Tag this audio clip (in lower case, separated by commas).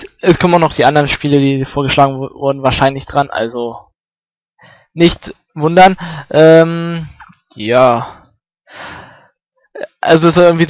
speech